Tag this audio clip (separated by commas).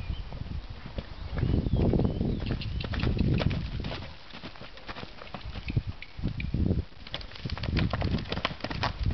Speech, Run